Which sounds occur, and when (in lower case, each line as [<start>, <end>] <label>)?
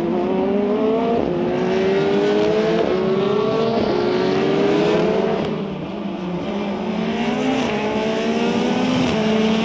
[0.00, 1.14] revving
[0.00, 9.64] race car
[1.45, 2.44] revving
[2.87, 3.70] revving
[3.99, 4.99] revving
[7.25, 9.64] revving